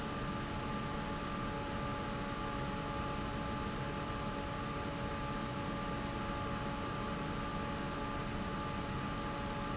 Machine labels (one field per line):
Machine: fan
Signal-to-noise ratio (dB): -6 dB